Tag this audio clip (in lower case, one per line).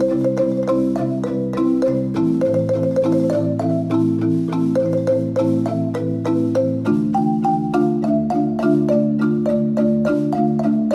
xylophone